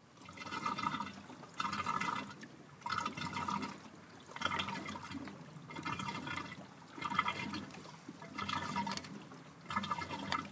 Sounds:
liquid

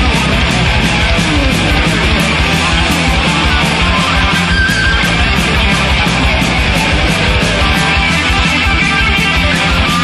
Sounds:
music, heavy metal

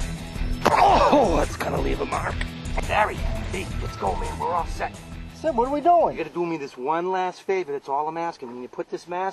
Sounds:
music, speech

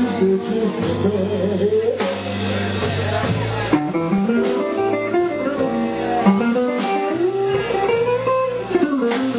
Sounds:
music

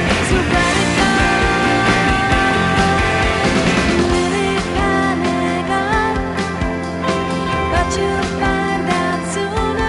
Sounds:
grunge, music

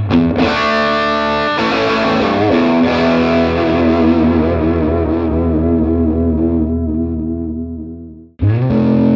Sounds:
plucked string instrument, music, guitar, electric guitar, musical instrument

